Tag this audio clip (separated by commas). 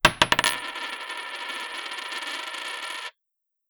Coin (dropping), home sounds